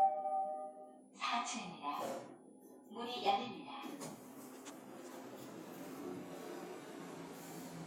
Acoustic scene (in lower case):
elevator